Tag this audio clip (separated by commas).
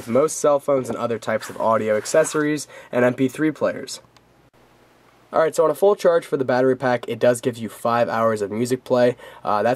Speech